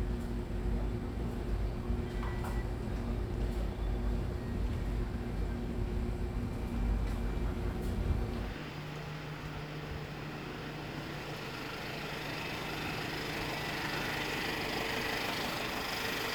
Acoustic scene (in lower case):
residential area